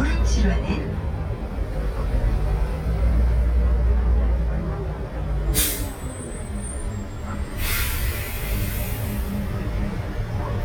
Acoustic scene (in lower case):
bus